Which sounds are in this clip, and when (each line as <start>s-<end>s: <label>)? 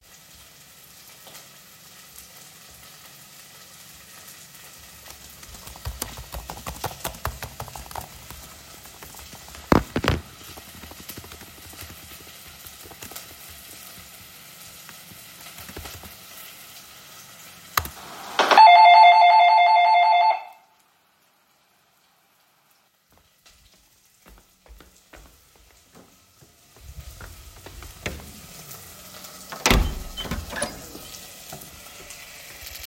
5.4s-17.1s: keyboard typing
18.3s-20.5s: bell ringing
29.5s-30.8s: door